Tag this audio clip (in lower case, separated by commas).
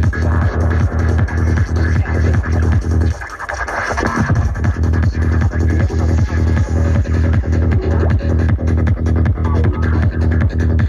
music, trance music, electronic music